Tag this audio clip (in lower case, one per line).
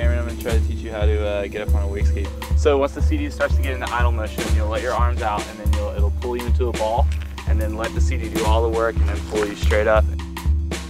music
speech